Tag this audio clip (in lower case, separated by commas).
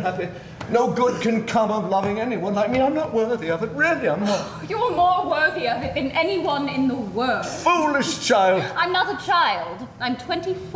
speech